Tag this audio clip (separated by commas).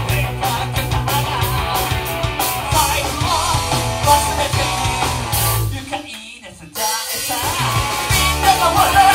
Rock and roll, Singing, Music, Rock music